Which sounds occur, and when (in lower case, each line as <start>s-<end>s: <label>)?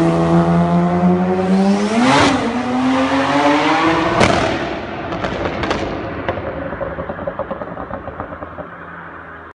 0.0s-5.4s: vroom
0.0s-9.5s: car
6.2s-8.6s: generic impact sounds